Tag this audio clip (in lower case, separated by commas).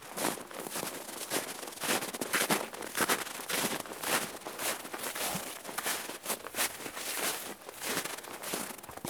walk